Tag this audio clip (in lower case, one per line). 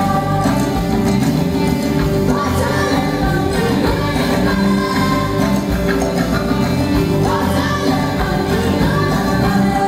music